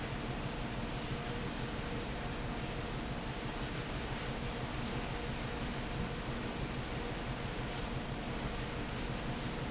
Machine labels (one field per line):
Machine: fan